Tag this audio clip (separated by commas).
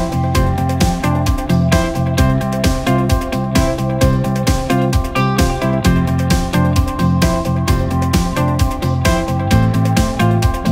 Music